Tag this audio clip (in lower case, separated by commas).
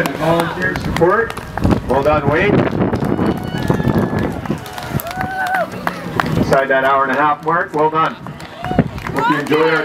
run, outside, urban or man-made, speech